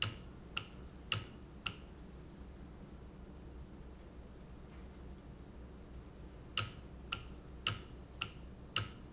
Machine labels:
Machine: valve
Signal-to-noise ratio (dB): 6 dB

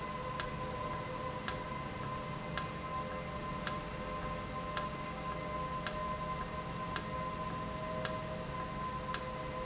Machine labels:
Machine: valve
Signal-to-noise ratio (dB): -6 dB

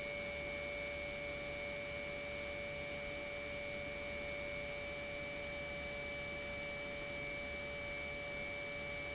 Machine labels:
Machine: pump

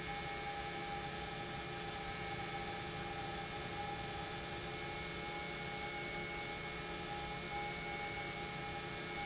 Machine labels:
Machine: pump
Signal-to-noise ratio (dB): 0 dB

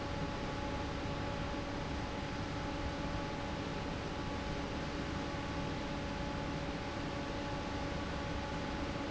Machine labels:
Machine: fan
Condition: normal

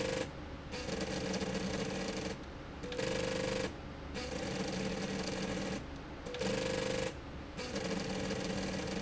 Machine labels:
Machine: slide rail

